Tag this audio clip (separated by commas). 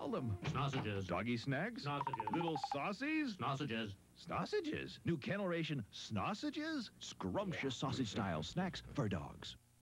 Speech